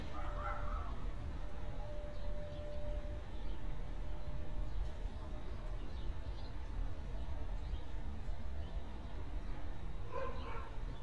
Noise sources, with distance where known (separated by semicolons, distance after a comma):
dog barking or whining